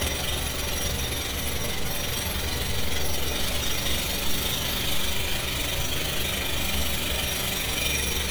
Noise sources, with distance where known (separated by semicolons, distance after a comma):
jackhammer, near